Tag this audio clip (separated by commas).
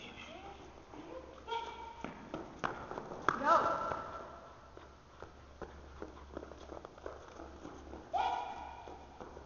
inside a large room or hall, Speech, Run